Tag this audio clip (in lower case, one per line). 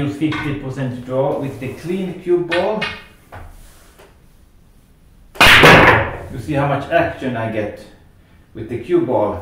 striking pool